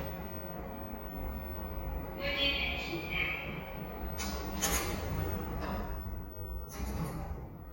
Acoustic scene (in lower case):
elevator